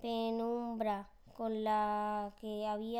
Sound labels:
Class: speech